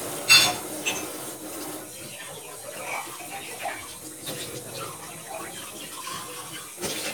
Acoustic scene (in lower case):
kitchen